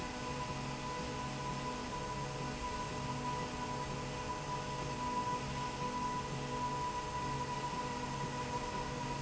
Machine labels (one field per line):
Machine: slide rail